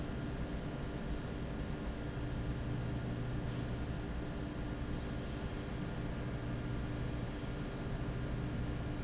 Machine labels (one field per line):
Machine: fan